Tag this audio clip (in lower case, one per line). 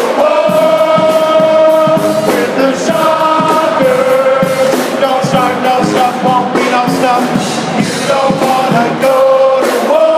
music